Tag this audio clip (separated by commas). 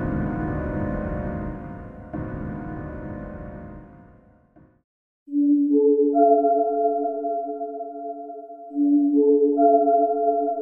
Music